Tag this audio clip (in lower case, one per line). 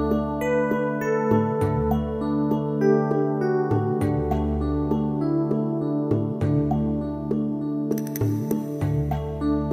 music